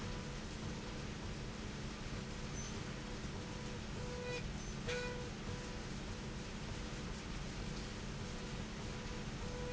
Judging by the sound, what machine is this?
slide rail